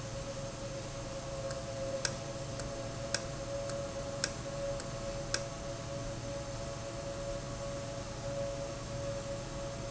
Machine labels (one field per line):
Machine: valve